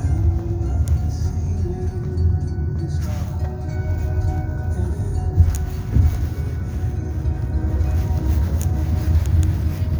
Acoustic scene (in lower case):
car